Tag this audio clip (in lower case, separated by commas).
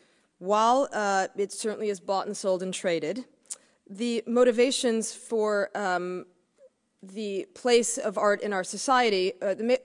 speech